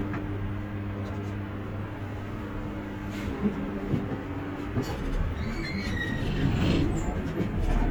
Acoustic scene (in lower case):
bus